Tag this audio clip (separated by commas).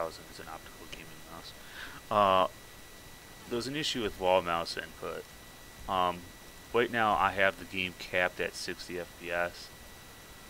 Speech